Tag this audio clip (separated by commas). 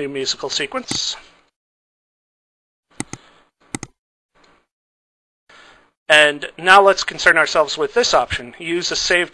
inside a small room, Speech